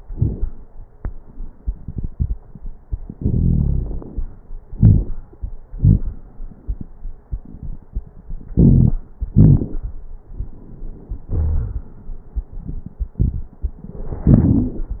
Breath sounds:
3.15-4.01 s: wheeze
4.74-5.17 s: inhalation
4.74-5.17 s: crackles
5.76-6.18 s: exhalation
5.76-6.18 s: crackles
8.53-8.96 s: inhalation
8.53-8.96 s: crackles
9.36-9.78 s: exhalation
9.36-9.78 s: crackles

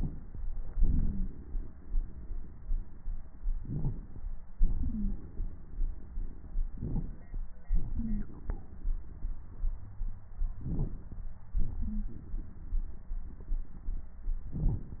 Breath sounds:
0.76-3.32 s: exhalation
0.88-1.28 s: wheeze
3.59-4.24 s: inhalation
4.56-6.61 s: exhalation
4.79-5.13 s: wheeze
6.75-7.40 s: inhalation
7.66-10.31 s: exhalation
7.96-8.22 s: wheeze
10.64-11.21 s: inhalation
11.57-14.12 s: exhalation
11.79-12.04 s: wheeze

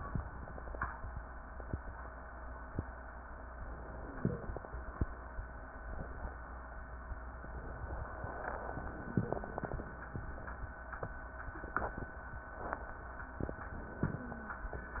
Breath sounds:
3.99-4.60 s: wheeze
8.81-9.41 s: wheeze
14.03-14.64 s: wheeze

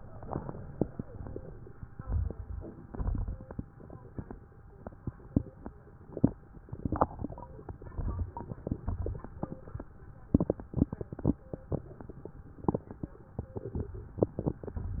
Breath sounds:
1.99-2.87 s: crackles
2.01-2.88 s: inhalation
2.92-3.79 s: exhalation
2.92-3.79 s: crackles
7.64-8.52 s: crackles
7.72-8.59 s: inhalation
7.72-8.59 s: crackles
8.84-9.71 s: exhalation

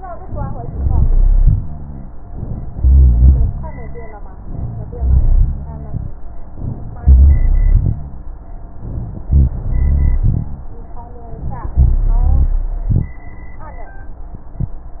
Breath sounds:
0.65-1.48 s: inhalation
1.44-2.09 s: rhonchi
1.59-2.11 s: exhalation
2.69-3.55 s: inhalation
2.69-3.55 s: rhonchi
3.59-4.18 s: exhalation
3.59-4.18 s: rhonchi
4.44-5.03 s: inhalation
4.44-5.03 s: rhonchi
5.05-6.02 s: exhalation
5.05-6.02 s: rhonchi
6.57-7.04 s: inhalation
7.12-8.41 s: exhalation
7.12-8.41 s: rhonchi
8.77-9.28 s: inhalation
9.28-10.74 s: exhalation
9.28-10.74 s: rhonchi
11.33-11.78 s: inhalation
11.82-12.64 s: exhalation
11.82-12.64 s: rhonchi

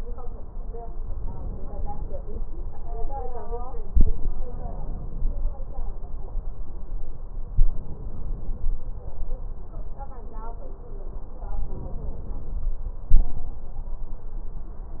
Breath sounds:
1.12-2.24 s: inhalation
4.38-5.50 s: inhalation
7.59-8.71 s: inhalation
11.49-12.61 s: inhalation
13.10-13.69 s: exhalation

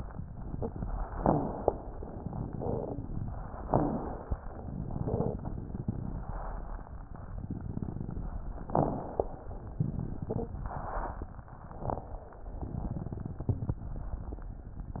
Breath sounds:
1.14-1.69 s: crackles
1.18-1.89 s: inhalation
2.01-3.65 s: exhalation
2.50-3.25 s: crackles
3.65-4.36 s: inhalation
3.66-4.11 s: crackles
4.54-6.32 s: exhalation
4.61-6.32 s: crackles
8.69-9.24 s: crackles
8.72-9.44 s: inhalation
9.75-10.53 s: crackles
9.80-11.27 s: exhalation
11.43-12.29 s: inhalation
11.72-12.12 s: crackles
12.39-13.82 s: exhalation
12.55-13.77 s: crackles

